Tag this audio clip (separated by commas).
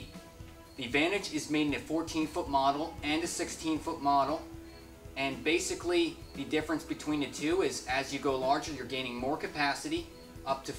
Music, Speech